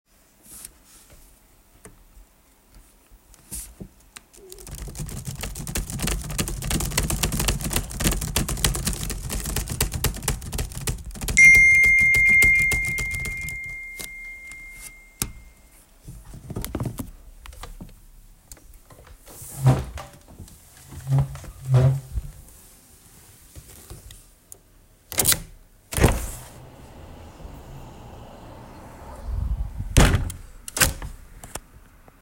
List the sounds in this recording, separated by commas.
keyboard typing, phone ringing, window